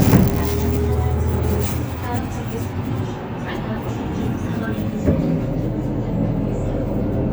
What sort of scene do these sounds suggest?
bus